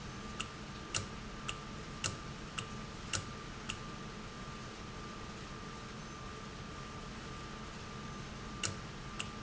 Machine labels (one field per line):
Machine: valve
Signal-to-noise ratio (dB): 0 dB